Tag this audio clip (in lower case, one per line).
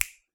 hands
finger snapping